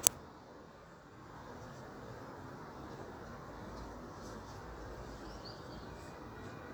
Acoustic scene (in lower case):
park